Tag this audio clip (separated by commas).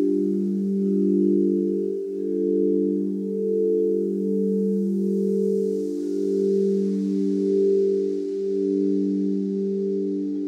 singing bowl